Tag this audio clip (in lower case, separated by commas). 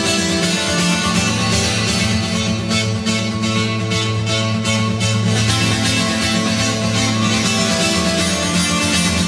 music, musical instrument, guitar, plucked string instrument